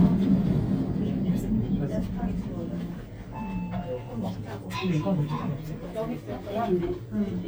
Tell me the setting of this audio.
elevator